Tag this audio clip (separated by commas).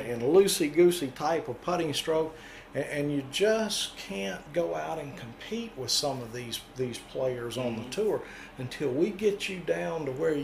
Speech